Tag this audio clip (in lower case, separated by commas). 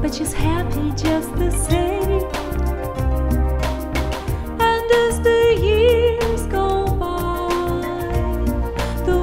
music, funk